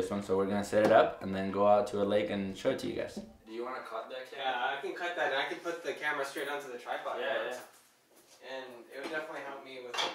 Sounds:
Speech

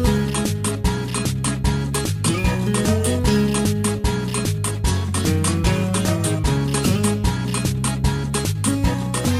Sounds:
Music

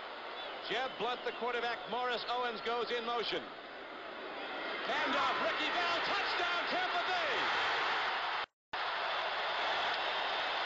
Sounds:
Speech

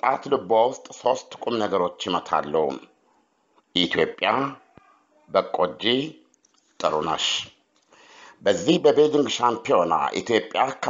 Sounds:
Speech

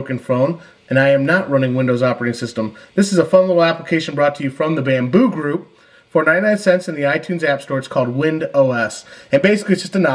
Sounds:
Speech

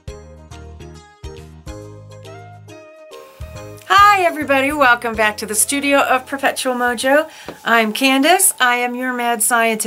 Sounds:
Speech, Music

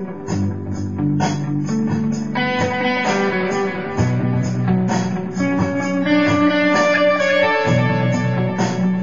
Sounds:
Musical instrument, Music, Electric guitar, Plucked string instrument, Guitar

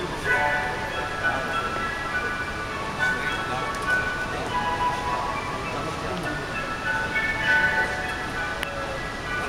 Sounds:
Speech, Music

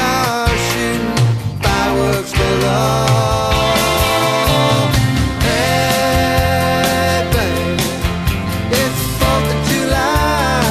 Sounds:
Music, Psychedelic rock

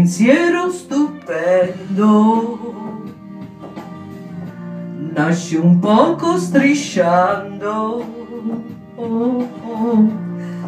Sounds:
Music

